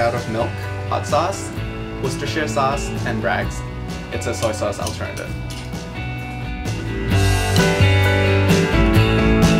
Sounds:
Music, Speech

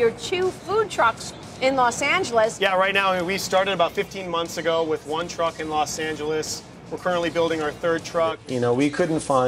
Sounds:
Music, Speech

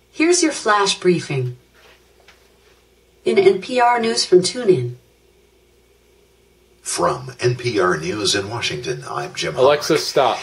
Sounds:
Speech

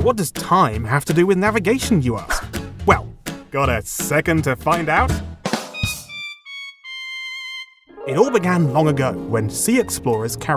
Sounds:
Music, Speech

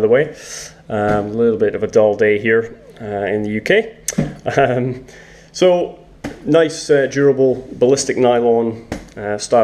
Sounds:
Speech

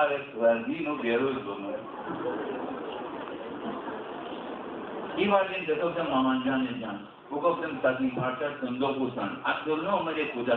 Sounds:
inside a public space, Speech

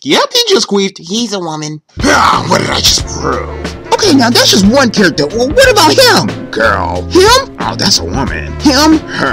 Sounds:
Music, Speech

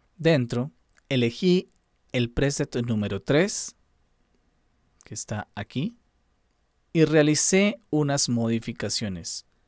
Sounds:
Speech

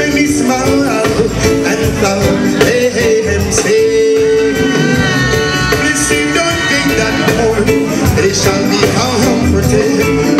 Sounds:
Music

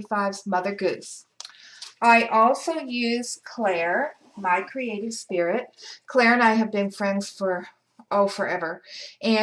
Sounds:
Speech

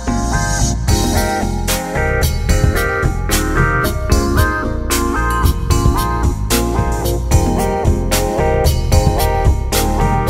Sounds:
Music

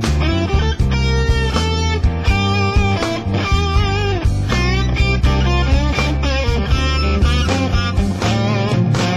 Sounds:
Music

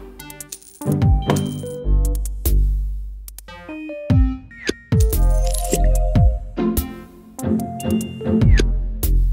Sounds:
Music, Funny music

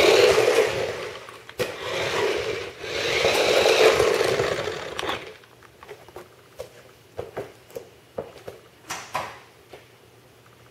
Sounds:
Vehicle, Car

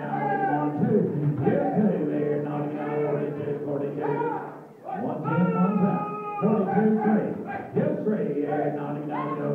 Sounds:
Speech

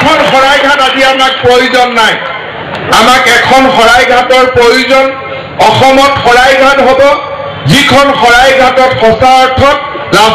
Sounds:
Speech, man speaking

